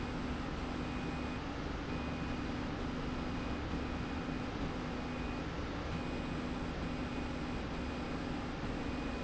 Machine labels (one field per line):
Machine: slide rail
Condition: normal